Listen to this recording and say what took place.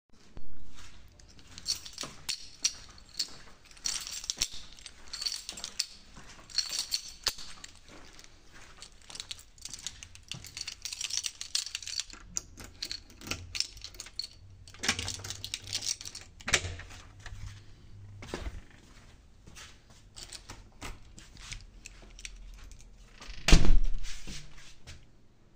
I walked in the hall to my room while I was rotating my keychain in my hand and then used the key to open the room finally I closed the door.